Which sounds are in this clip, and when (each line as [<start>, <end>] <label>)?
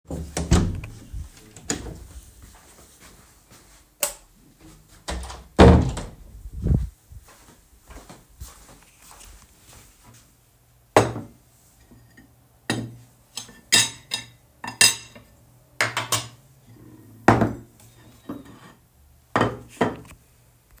[0.07, 2.06] door
[2.57, 3.84] footsteps
[3.95, 4.21] light switch
[4.99, 6.19] door
[6.68, 6.95] footsteps
[7.09, 10.22] footsteps
[10.89, 20.21] cutlery and dishes